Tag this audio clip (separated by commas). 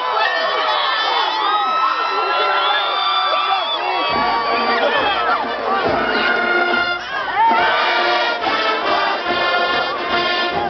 Music, Speech